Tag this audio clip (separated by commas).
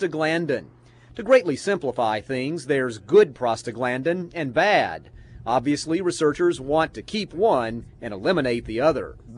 Speech